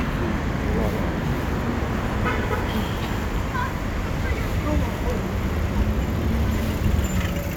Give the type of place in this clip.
street